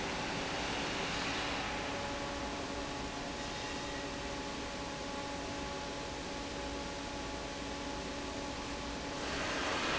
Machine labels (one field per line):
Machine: fan